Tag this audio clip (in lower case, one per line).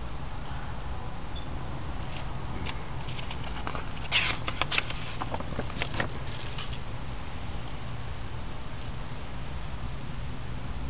crackle